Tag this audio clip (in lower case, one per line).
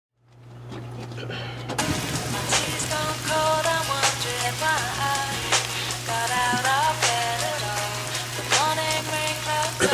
music